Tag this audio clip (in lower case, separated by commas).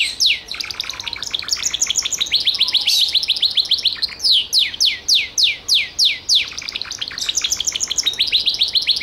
mynah bird singing